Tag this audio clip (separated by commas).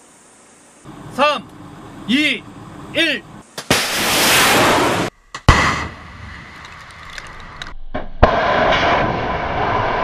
missile launch